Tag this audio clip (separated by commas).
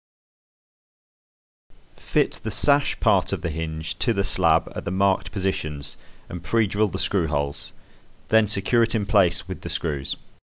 Speech